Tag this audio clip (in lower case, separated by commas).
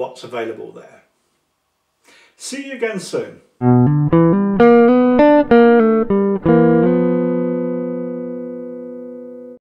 music, inside a small room, plucked string instrument, musical instrument, speech, guitar